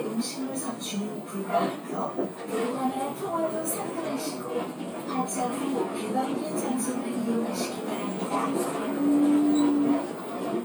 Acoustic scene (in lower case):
bus